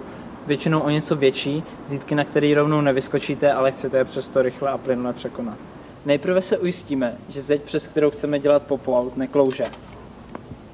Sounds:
Speech

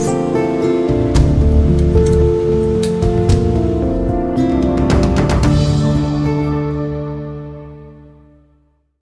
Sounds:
Music

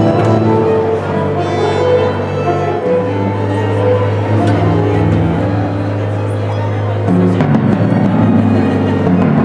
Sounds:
Music, Orchestra, Speech

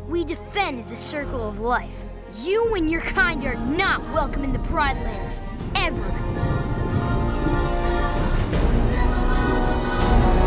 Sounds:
Speech, Music, Theme music

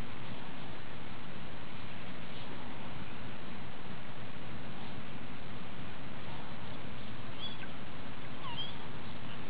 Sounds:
outside, rural or natural

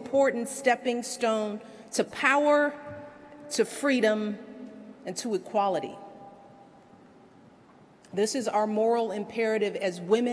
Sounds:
woman speaking

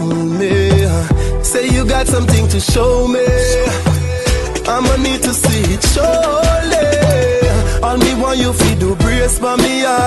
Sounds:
Music, Pop music

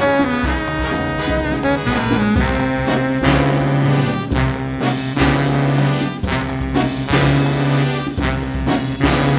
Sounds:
Musical instrument, Brass instrument, Orchestra, Trumpet, Music, Trombone, Saxophone

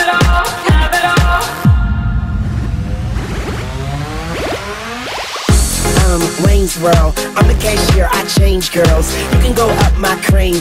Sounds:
Music

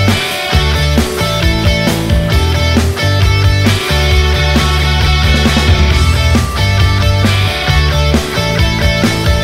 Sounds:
Music

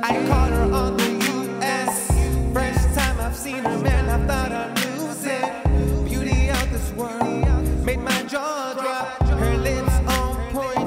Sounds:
Music

